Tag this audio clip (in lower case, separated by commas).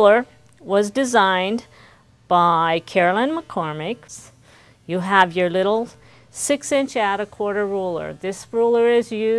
speech